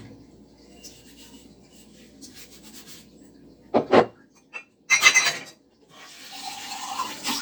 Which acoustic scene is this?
kitchen